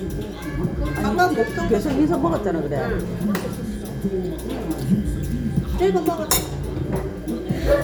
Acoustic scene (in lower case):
restaurant